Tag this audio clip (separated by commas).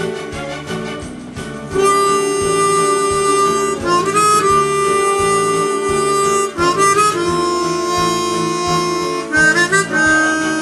Music, Harmonica